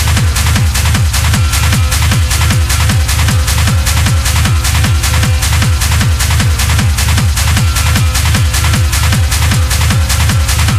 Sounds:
techno, electronic music, music

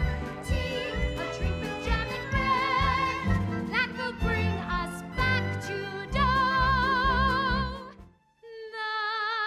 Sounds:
music, funny music

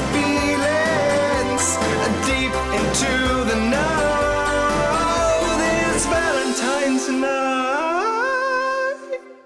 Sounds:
male singing, music

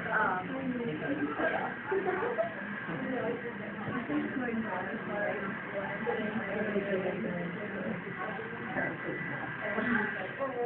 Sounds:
speech

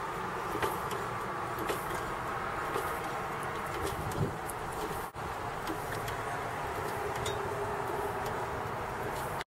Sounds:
idling, engine, medium engine (mid frequency)

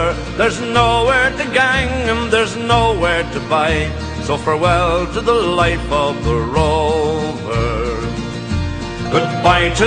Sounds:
music

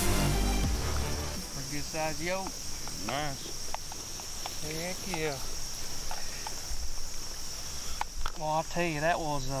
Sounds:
speech, insect, outside, rural or natural

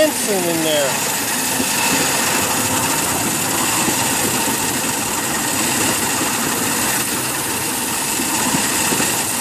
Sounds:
speech, rail transport, train

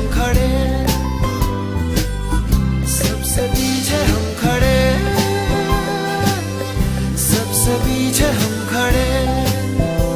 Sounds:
music

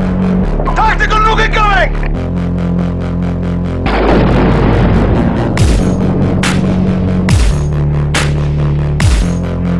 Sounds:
speech, music, dubstep, electronic music

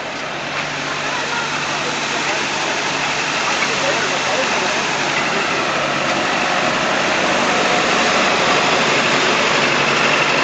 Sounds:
train, hiss, speech, vehicle

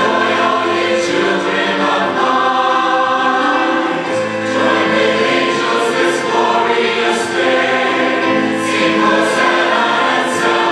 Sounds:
soundtrack music, christmas music, music

